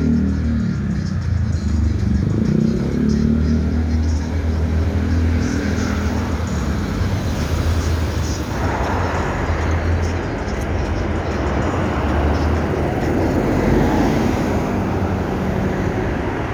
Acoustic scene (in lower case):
street